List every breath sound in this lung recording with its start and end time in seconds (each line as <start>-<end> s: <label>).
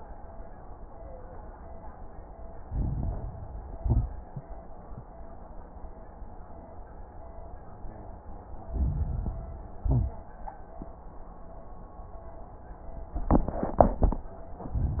2.64-3.72 s: inhalation
2.64-3.72 s: crackles
3.76-4.33 s: exhalation
3.76-4.33 s: crackles
8.61-9.80 s: inhalation
8.61-9.80 s: crackles
9.84-10.41 s: exhalation
9.84-10.41 s: crackles
14.69-15.00 s: inhalation
14.69-15.00 s: crackles